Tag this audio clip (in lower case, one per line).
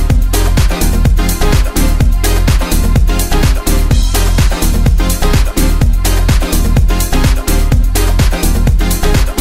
dance music
music